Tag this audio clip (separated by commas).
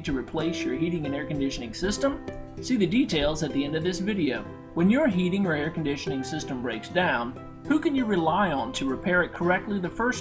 Speech, Music